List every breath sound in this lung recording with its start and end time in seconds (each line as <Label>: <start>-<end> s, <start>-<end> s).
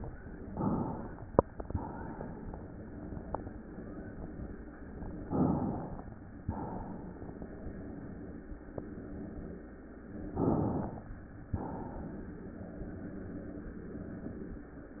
Inhalation: 0.39-1.49 s, 5.32-6.43 s, 10.36-11.51 s
Exhalation: 1.49-2.62 s, 6.44-7.47 s, 11.51-12.54 s